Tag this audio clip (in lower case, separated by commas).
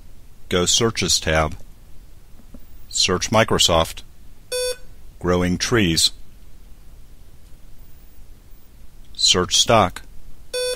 man speaking, narration, speech